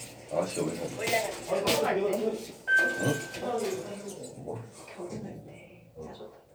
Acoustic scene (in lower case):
elevator